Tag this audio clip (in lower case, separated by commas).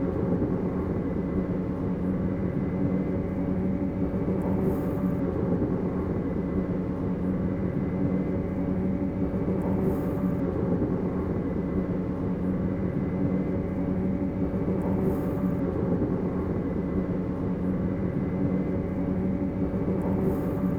rail transport, vehicle, train